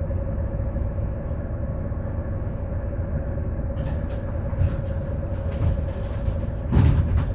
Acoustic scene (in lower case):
bus